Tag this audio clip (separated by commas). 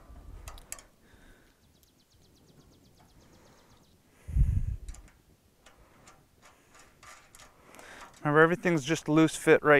Speech